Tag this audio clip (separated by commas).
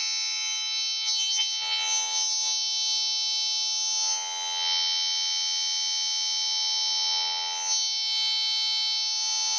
Siren